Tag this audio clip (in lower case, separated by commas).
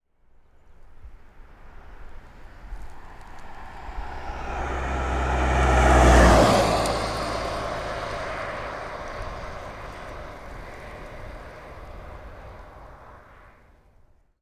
car, motor vehicle (road), vehicle, car passing by